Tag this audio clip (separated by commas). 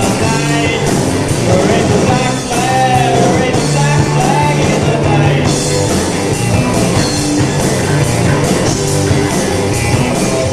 Music, Singing